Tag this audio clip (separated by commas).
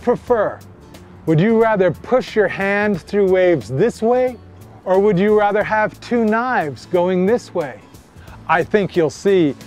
Music, Speech